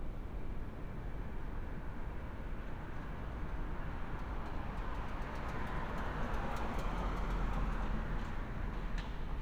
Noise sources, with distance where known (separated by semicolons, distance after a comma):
medium-sounding engine, near